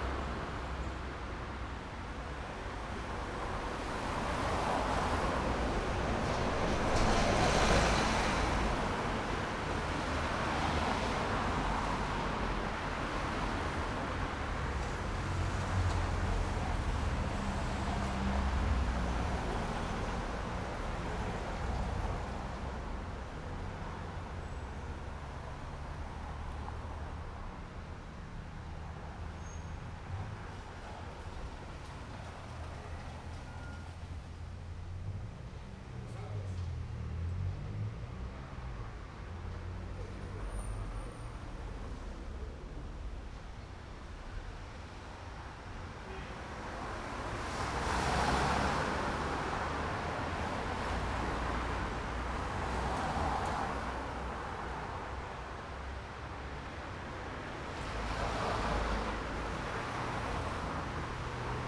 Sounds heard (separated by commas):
bus wheels rolling, car, bus engine accelerating, people talking, car engine accelerating, bus, car wheels rolling